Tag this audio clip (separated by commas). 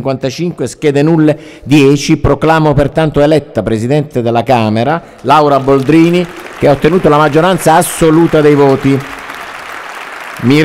Speech